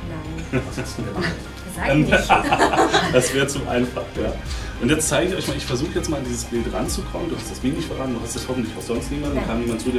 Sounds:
Speech, Music

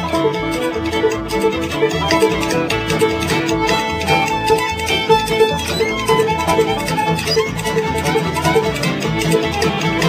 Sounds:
Music

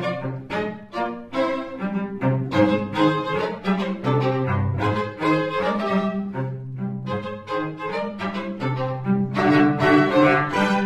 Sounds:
Bowed string instrument, Cello, Violin

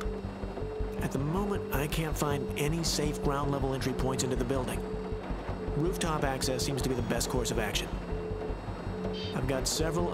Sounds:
Music, Speech

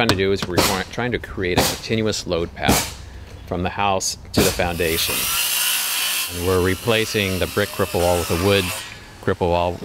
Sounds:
outside, urban or man-made, Speech

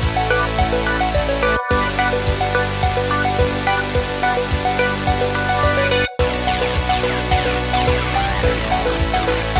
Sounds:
Music

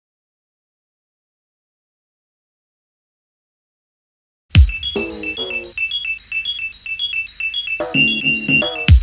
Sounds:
Music

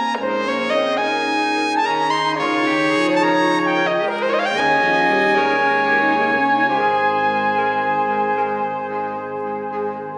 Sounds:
Music

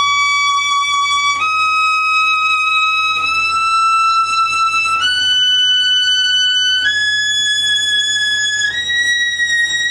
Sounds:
Violin, Musical instrument, Music

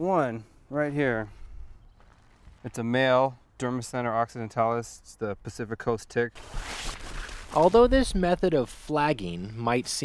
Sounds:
Speech

